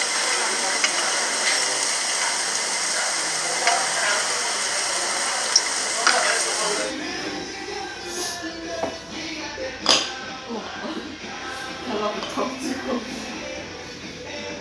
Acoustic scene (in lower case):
restaurant